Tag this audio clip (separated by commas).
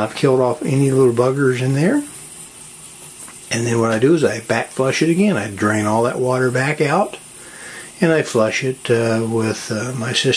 Speech